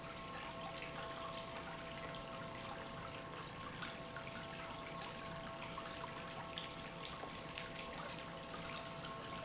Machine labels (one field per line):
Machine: pump